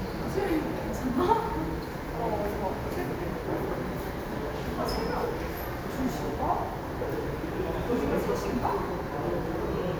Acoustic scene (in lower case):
subway station